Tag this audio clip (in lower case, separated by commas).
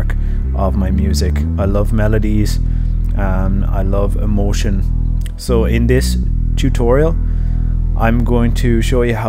speech, music, electronic music